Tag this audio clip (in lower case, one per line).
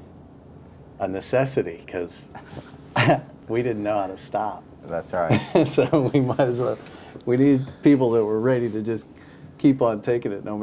speech